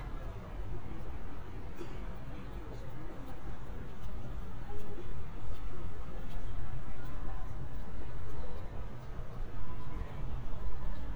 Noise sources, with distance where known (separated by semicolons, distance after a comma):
person or small group talking, far